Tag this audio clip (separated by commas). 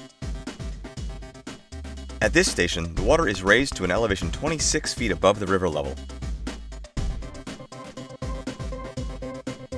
Speech, Music